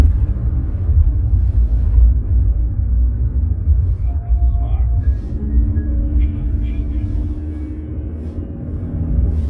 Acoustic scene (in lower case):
car